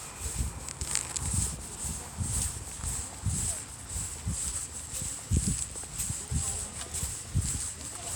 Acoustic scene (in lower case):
residential area